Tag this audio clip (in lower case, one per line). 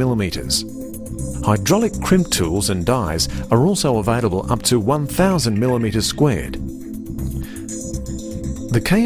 speech
music